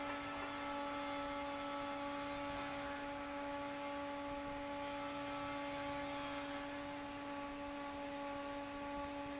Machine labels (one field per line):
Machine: fan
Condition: normal